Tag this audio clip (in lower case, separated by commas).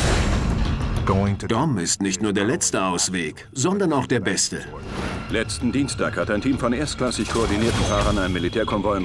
music, speech